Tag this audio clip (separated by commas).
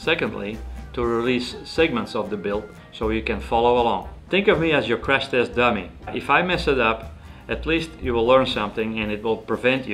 Music, Speech